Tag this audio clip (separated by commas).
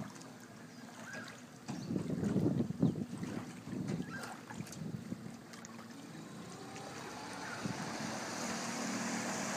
Water vehicle, Wind, Wind noise (microphone), speedboat